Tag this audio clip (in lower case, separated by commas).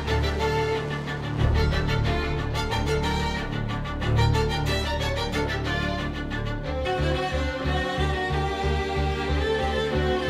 fiddle, bowed string instrument